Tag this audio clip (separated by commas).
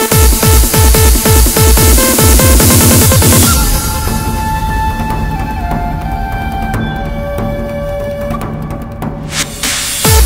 Music